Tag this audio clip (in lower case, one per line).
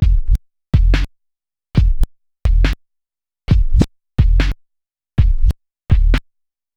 musical instrument
scratching (performance technique)
music